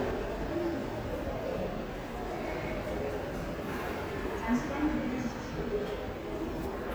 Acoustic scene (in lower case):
subway station